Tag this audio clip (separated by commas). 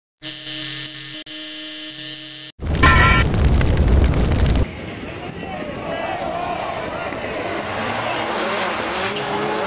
Hum